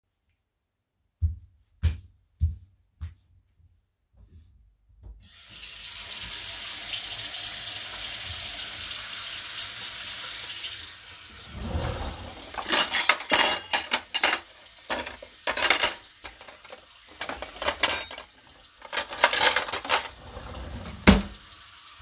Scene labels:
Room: kitchen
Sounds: footsteps, running water, wardrobe or drawer (more than once), cutlery and dishes

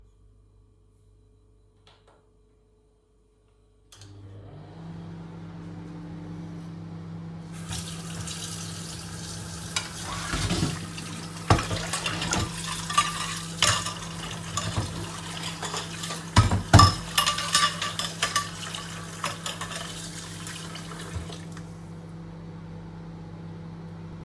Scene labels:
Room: kitchen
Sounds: microwave, running water, cutlery and dishes

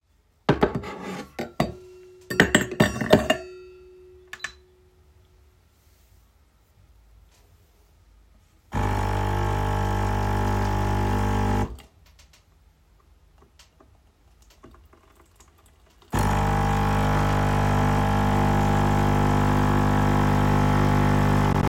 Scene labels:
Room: bedroom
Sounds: cutlery and dishes, coffee machine

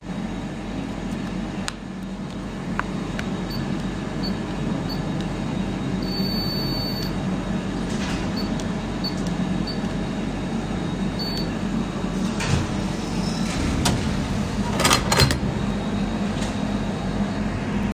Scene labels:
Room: bedroom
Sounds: footsteps, window

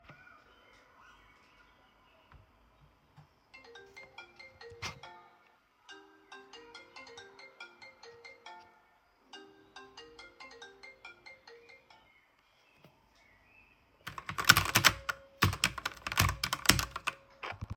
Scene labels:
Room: bedroom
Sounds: phone ringing, keyboard typing

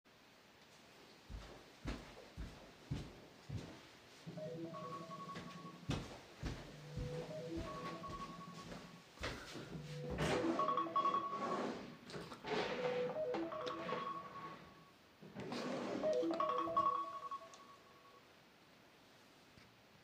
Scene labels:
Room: living room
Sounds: footsteps, phone ringing, wardrobe or drawer (more than once)

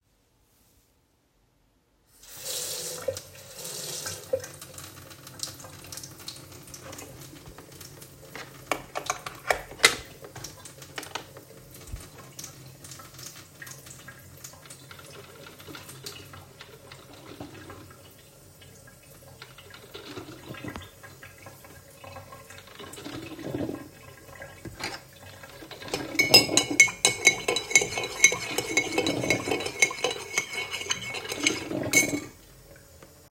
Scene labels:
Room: kitchen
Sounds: running water, coffee machine, cutlery and dishes

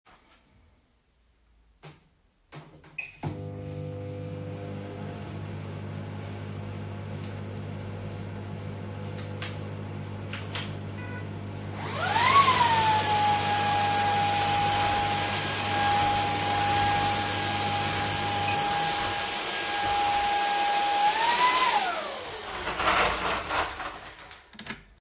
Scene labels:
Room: kitchen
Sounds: microwave, vacuum cleaner

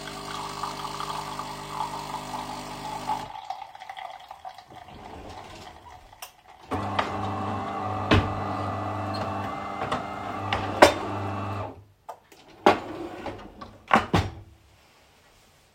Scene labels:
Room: kitchen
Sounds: coffee machine, wardrobe or drawer (more than once), cutlery and dishes

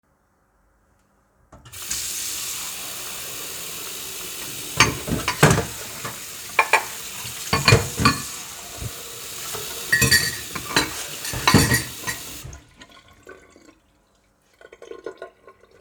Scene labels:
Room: kitchen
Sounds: running water, cutlery and dishes

